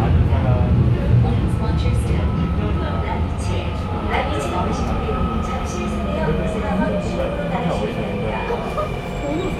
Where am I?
on a subway train